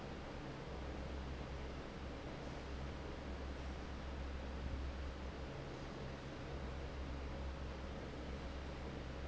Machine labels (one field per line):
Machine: fan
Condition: normal